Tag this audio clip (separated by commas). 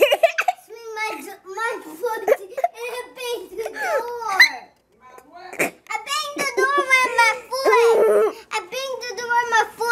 inside a small room, Child speech, Speech